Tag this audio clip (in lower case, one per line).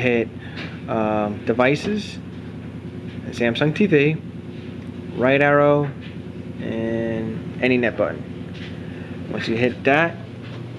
inside a small room
speech